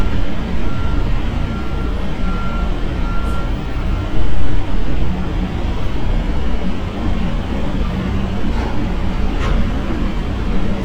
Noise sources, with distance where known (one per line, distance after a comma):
unidentified alert signal